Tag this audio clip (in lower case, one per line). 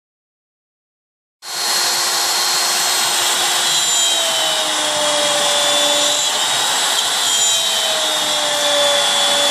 tools